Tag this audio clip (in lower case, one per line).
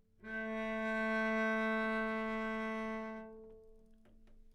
music
musical instrument
bowed string instrument